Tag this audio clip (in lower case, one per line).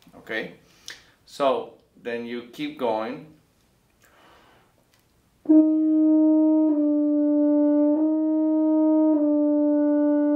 playing french horn